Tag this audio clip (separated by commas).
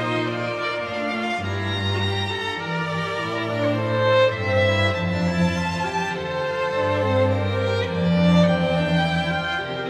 Music, Classical music